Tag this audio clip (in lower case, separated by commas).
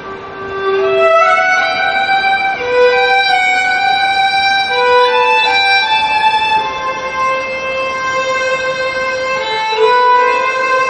musical instrument, violin, music